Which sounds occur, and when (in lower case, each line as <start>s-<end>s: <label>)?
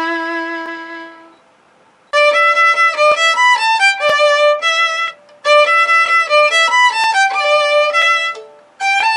0.0s-9.1s: background noise
0.0s-1.3s: music
2.1s-5.1s: music
5.4s-8.6s: music
8.7s-9.1s: music